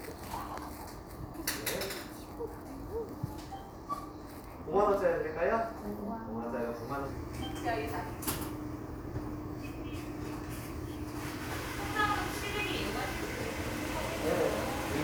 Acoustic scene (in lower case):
crowded indoor space